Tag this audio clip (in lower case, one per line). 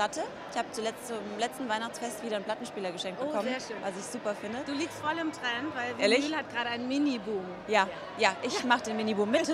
speech